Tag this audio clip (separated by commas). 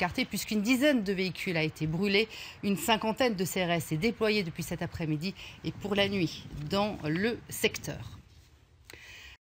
Speech